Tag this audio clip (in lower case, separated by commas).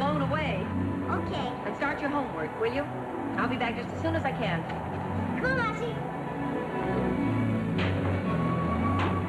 music, speech, television